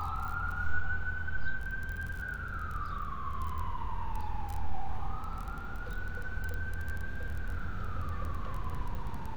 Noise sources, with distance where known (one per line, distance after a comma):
siren, far